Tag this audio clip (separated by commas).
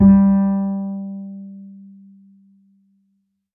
Bowed string instrument, Music, Musical instrument